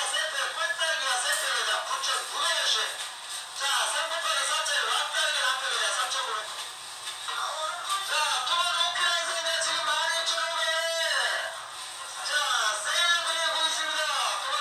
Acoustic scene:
crowded indoor space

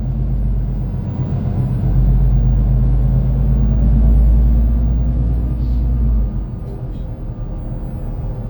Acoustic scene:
bus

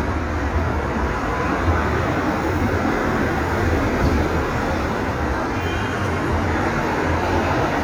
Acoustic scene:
street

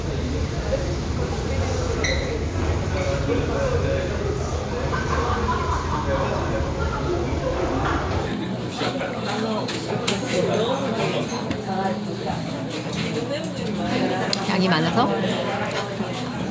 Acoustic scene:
restaurant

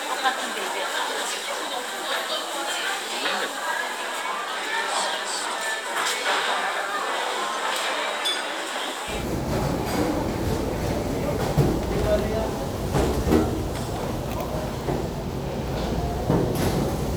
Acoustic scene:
restaurant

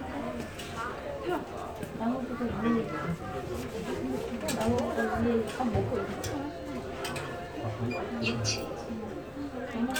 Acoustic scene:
elevator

